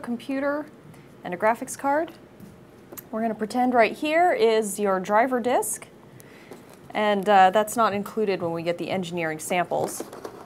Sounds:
speech

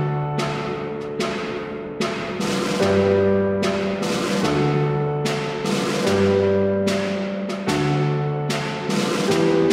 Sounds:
timpani

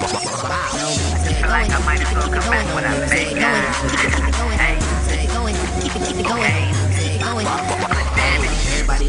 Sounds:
background music
ska
soundtrack music
tender music
independent music
dance music
soul music
music

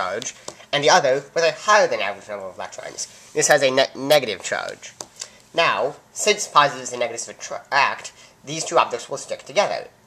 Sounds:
speech

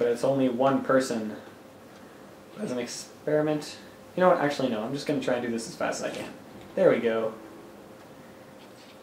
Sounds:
speech
inside a small room

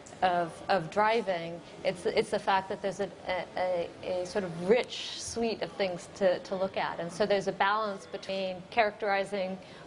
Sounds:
female speech

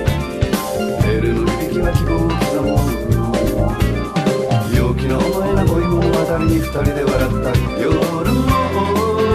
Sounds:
music

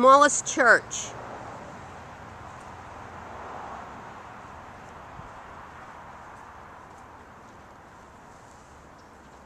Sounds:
speech

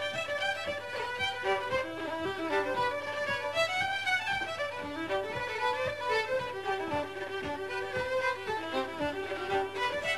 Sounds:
musical instrument
violin
music

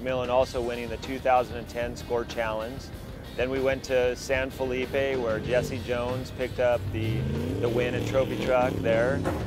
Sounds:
speech
music
vehicle

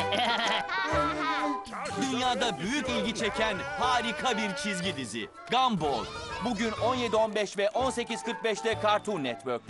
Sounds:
music
speech

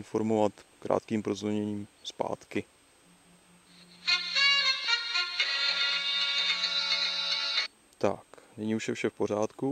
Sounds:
speech
music

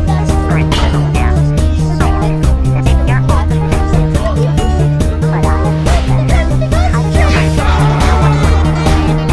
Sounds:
funny music
music

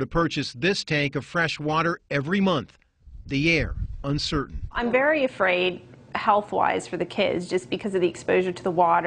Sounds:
speech

